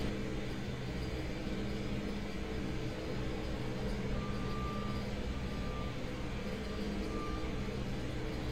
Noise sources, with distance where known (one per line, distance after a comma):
unidentified impact machinery, far
reverse beeper